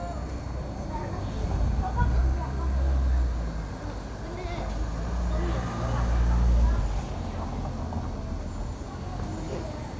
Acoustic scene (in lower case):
street